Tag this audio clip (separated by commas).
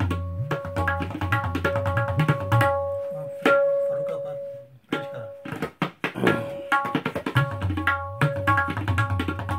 playing tabla